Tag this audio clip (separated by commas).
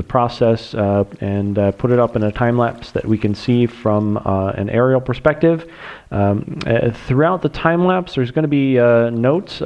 Stream, Speech